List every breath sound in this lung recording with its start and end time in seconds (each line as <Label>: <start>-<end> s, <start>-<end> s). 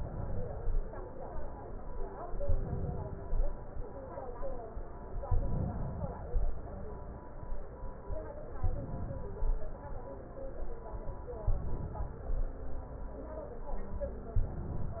Inhalation: 0.00-0.80 s, 2.26-3.42 s, 5.30-6.48 s, 8.63-9.57 s, 11.50-12.45 s, 14.39-15.00 s